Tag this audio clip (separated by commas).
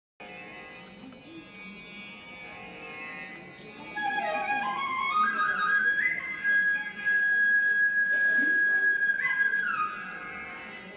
Music, inside a large room or hall